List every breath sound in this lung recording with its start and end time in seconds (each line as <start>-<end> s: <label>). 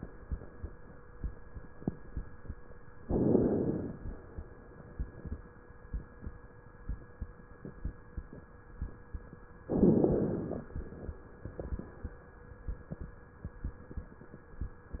3.04-4.04 s: inhalation
3.04-4.04 s: crackles
9.68-10.68 s: inhalation
9.68-10.68 s: crackles